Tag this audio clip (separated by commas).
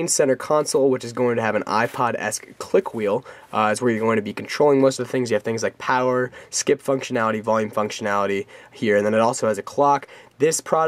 Speech